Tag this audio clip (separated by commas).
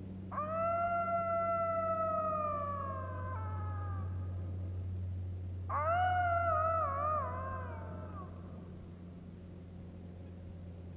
coyote howling